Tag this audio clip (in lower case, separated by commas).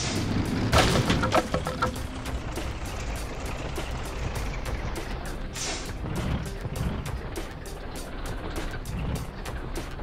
music, truck